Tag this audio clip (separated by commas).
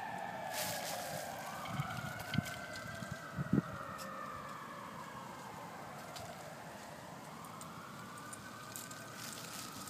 Police car (siren), Emergency vehicle, Siren